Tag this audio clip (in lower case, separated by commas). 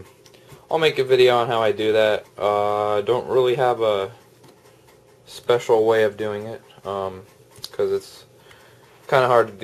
speech, inside a small room